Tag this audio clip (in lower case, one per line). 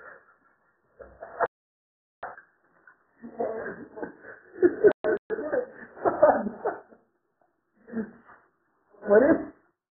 speech